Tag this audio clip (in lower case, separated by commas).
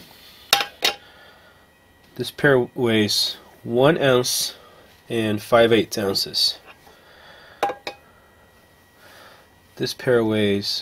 inside a small room, speech